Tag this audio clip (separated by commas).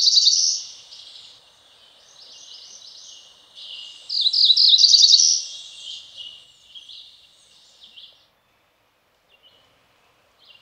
wood thrush calling